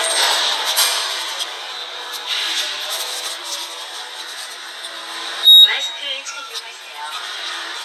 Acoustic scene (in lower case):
subway station